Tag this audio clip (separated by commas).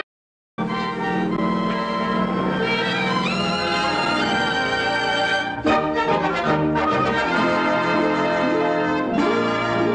Music